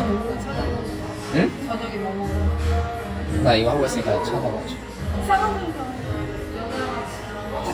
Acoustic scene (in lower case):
cafe